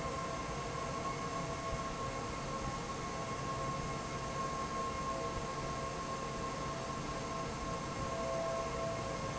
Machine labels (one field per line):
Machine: fan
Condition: normal